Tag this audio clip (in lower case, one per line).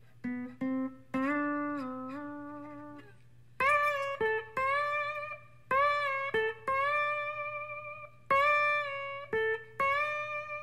playing steel guitar